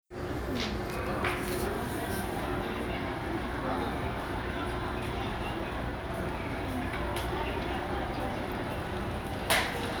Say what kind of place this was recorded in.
crowded indoor space